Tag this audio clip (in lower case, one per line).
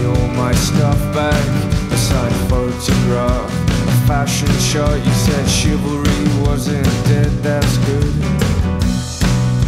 music